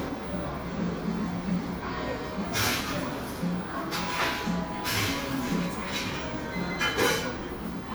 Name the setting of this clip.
cafe